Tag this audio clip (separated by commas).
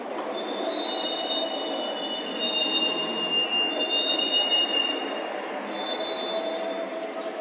Truck, Vehicle, Motor vehicle (road)